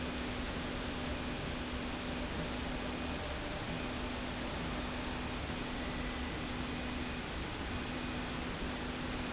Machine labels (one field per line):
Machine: slide rail